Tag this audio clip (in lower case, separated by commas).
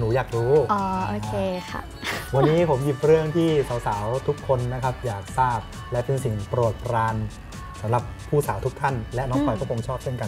music, speech